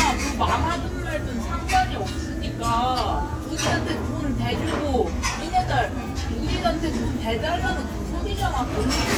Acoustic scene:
crowded indoor space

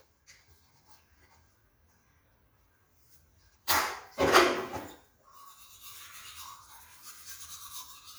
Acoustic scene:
restroom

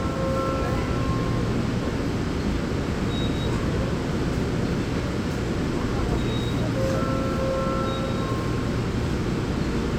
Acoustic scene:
subway train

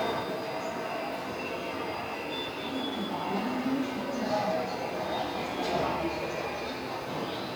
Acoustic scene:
subway station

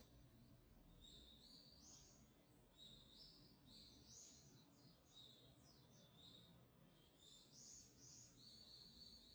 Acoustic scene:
park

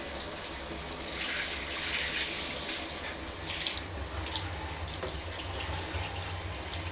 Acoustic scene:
restroom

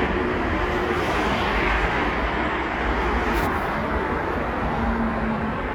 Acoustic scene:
street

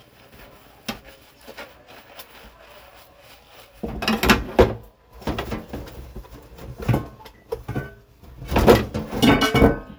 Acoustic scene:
kitchen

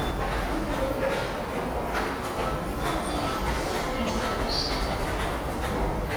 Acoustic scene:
subway station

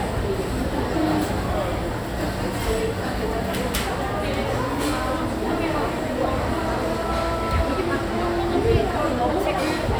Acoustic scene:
crowded indoor space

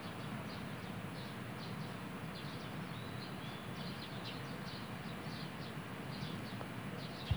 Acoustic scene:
park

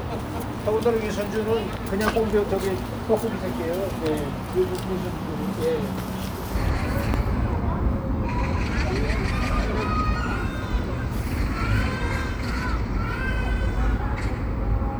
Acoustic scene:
park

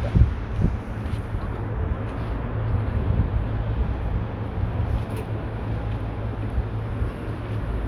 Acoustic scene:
residential area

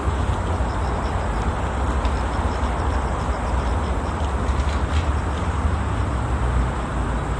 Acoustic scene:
park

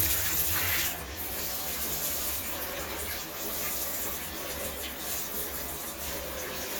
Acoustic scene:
restroom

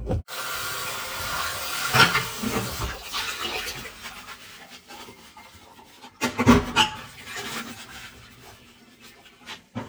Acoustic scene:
kitchen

